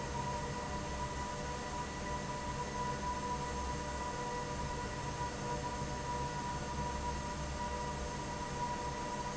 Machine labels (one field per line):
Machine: fan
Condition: normal